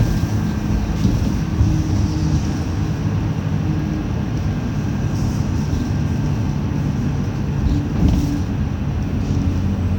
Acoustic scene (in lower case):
bus